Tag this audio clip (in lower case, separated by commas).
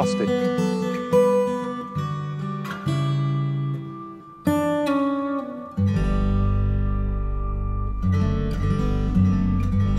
acoustic guitar